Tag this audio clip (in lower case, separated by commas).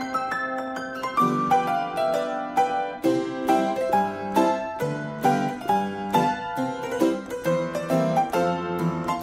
playing harpsichord